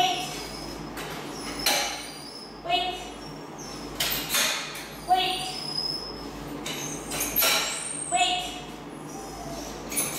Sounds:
Speech

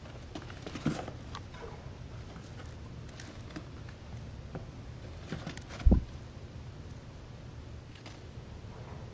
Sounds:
chinchilla barking

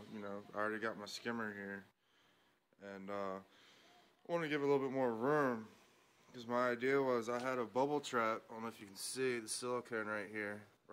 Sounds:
Speech

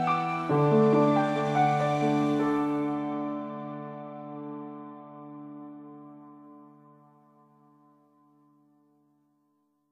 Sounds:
Keyboard (musical), Music

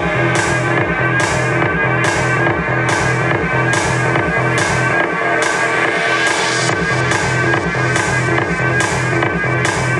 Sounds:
Music

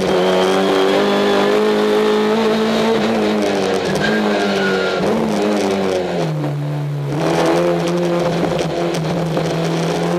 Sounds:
Car, Vehicle

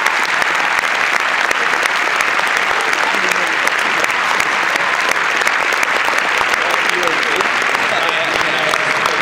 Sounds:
Speech, Male speech

